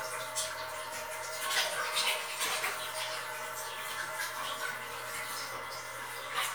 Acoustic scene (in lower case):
restroom